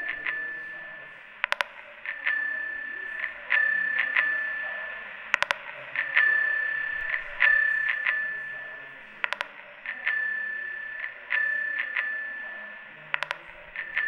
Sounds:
Bicycle bell, Alarm, Bicycle, Vehicle, Bell

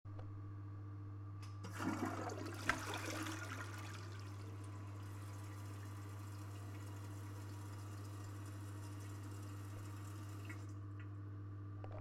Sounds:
Toilet flush, Domestic sounds

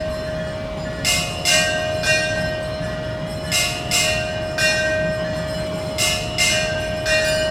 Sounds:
Bell

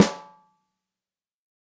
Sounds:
Music, Drum, Musical instrument, Percussion, Snare drum

